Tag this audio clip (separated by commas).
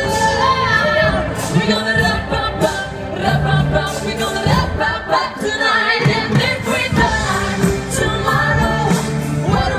Music